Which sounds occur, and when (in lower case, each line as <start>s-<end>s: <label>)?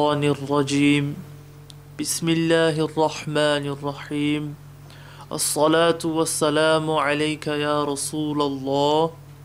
0.0s-1.2s: man speaking
0.0s-9.4s: mechanisms
1.7s-1.8s: tick
2.0s-4.6s: man speaking
2.7s-2.8s: tick
4.0s-4.1s: tick
4.9s-5.3s: breathing
5.3s-9.2s: man speaking
9.3s-9.4s: tick